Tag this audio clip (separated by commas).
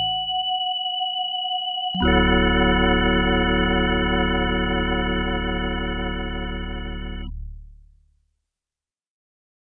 Music